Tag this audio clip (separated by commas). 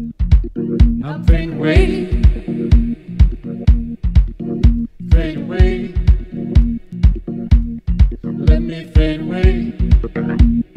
Music